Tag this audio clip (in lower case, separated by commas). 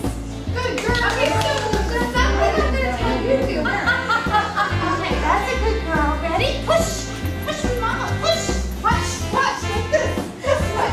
music, speech